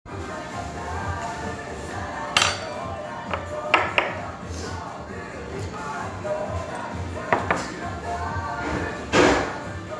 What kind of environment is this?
restaurant